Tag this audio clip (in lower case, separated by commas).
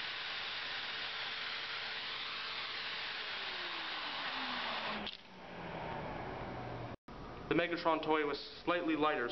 inside a large room or hall, speech